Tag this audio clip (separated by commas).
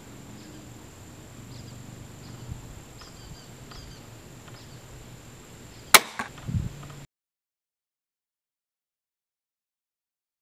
Silence, outside, rural or natural